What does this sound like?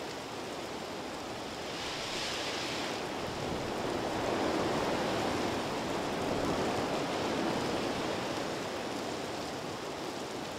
Roaring, crackling and hissing are present